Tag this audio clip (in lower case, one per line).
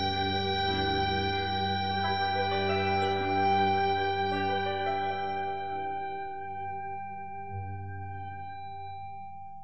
music